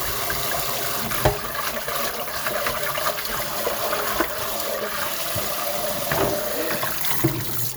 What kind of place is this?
kitchen